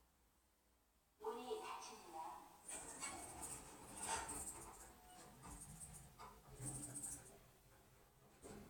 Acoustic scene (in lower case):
elevator